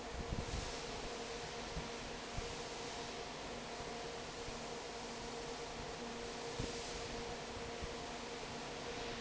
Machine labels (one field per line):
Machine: fan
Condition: normal